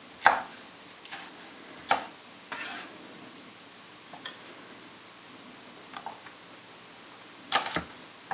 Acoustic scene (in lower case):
kitchen